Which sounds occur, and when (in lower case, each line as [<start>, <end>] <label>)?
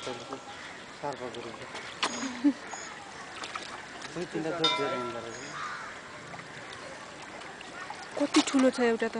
[0.00, 0.35] male speech
[0.00, 9.15] conversation
[0.00, 9.15] water
[0.00, 9.15] wind
[0.42, 1.92] caw
[0.95, 1.85] male speech
[1.58, 2.27] generic impact sounds
[1.98, 2.60] laughter
[2.62, 8.28] speech noise
[2.63, 2.91] bird vocalization
[4.08, 5.58] male speech
[4.58, 5.32] bell
[5.29, 5.53] bird vocalization
[5.34, 6.01] caw
[8.10, 9.15] female speech